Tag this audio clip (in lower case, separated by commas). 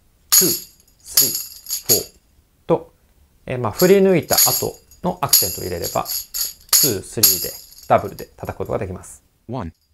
playing tambourine